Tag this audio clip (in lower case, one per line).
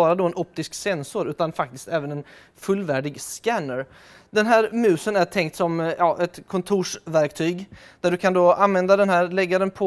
speech